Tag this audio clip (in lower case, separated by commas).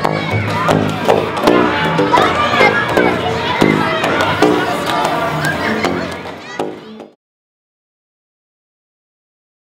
speech